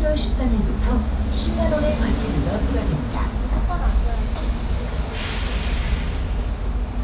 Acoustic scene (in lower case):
bus